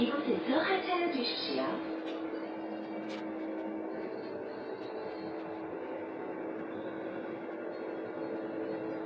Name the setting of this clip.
bus